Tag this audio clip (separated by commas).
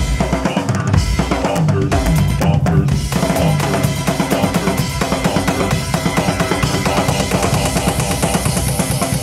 Drum roll, Percussion, Drum kit, Rimshot, Bass drum, Snare drum, Drum